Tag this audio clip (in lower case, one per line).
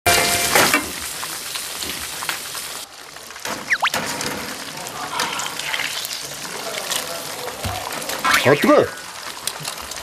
speech